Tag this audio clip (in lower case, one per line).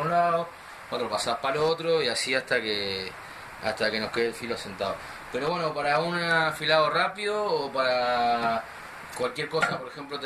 sharpen knife